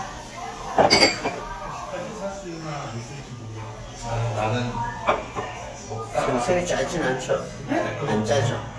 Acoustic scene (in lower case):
restaurant